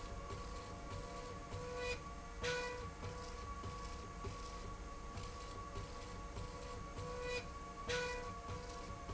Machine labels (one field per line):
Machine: slide rail